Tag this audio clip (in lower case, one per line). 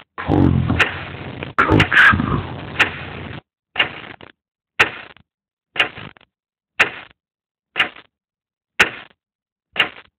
speech